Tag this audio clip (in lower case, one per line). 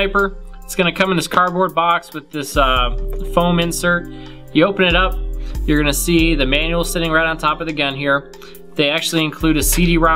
speech
music